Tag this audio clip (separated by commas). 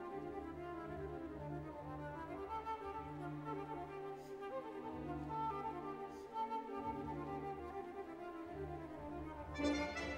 Musical instrument, fiddle, Music